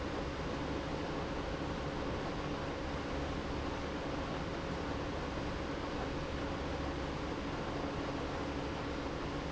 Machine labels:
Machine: pump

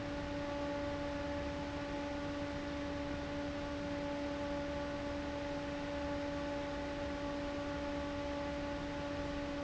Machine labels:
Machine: fan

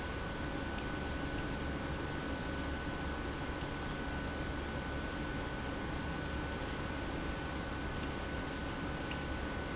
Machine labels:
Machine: pump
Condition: abnormal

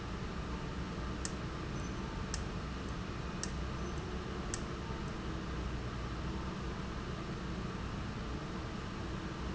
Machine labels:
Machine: valve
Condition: abnormal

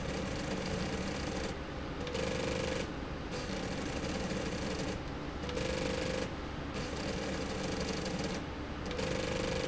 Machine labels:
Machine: slide rail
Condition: abnormal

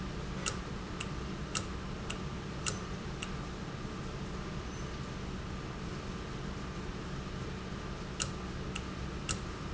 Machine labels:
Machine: valve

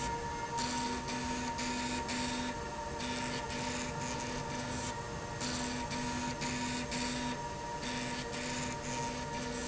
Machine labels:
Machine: slide rail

